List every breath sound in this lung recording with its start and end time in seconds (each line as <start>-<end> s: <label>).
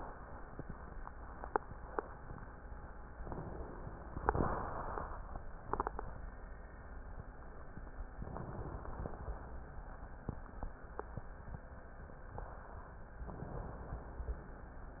3.21-4.27 s: inhalation
8.27-9.15 s: inhalation
13.36-14.36 s: inhalation